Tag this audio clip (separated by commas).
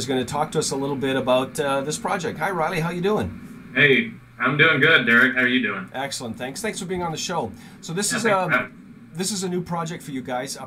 Speech